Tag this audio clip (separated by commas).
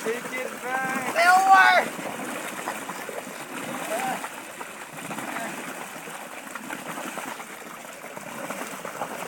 kayak, Speech, Water vehicle